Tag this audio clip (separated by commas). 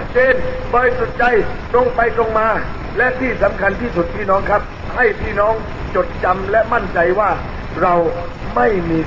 monologue, man speaking, Speech